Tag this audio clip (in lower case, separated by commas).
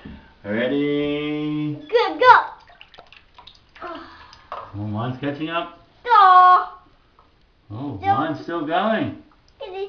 child speech, speech